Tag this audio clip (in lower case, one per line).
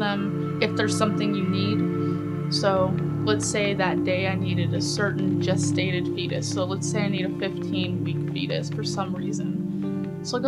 music
speech